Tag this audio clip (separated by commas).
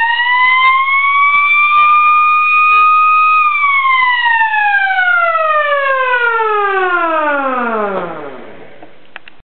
Siren, Police car (siren)